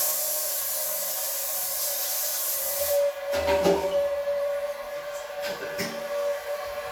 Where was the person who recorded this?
in a restroom